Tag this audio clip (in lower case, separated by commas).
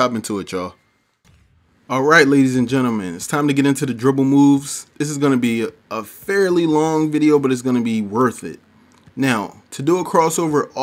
speech